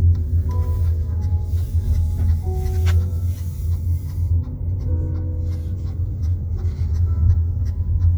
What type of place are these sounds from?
car